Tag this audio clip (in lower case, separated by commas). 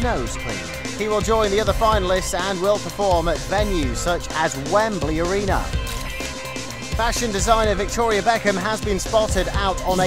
music, speech